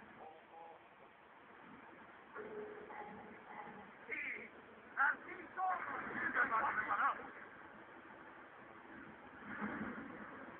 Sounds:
Speech

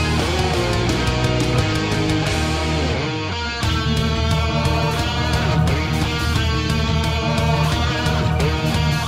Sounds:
Music

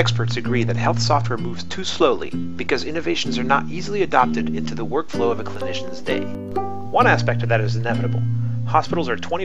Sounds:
monologue

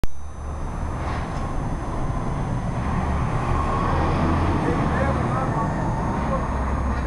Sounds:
Speech, Vehicle, Bus

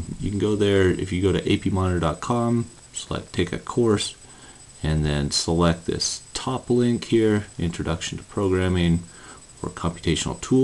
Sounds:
Speech

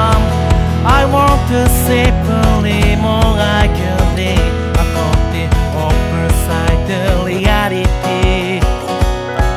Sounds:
Music

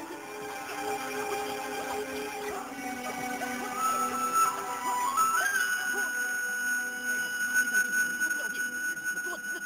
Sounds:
Speech, Music

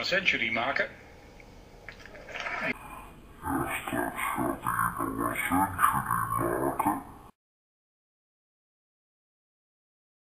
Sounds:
inside a large room or hall, Speech

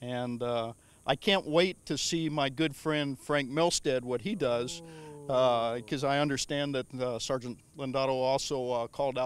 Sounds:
Speech

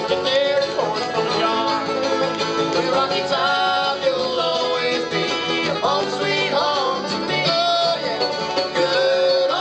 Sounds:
Bowed string instrument, fiddle, Pizzicato

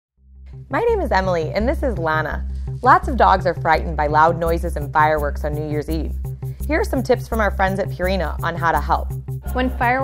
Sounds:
Music, Speech

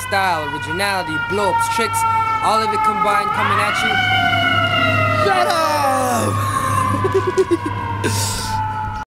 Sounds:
Speech, Bellow

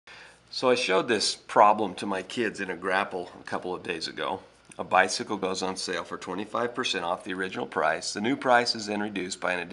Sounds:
Speech

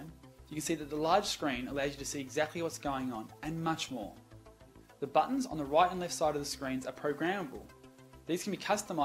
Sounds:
Speech, Music

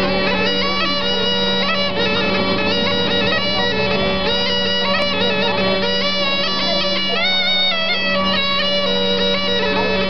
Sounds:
Speech, Music

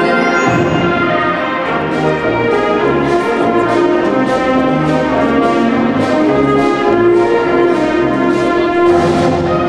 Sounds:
Music

